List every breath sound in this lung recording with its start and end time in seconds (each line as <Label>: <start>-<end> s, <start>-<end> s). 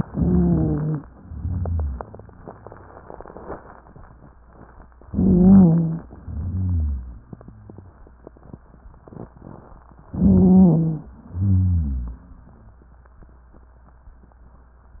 Inhalation: 0.00-1.05 s, 5.02-6.07 s, 10.08-11.11 s
Exhalation: 1.13-2.14 s, 6.15-7.96 s, 11.13-12.94 s
Wheeze: 0.00-1.05 s, 1.13-2.14 s, 5.02-6.07 s, 6.15-7.96 s, 10.08-11.11 s, 11.13-12.94 s